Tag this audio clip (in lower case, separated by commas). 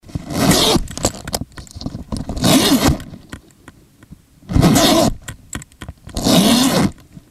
zipper (clothing), home sounds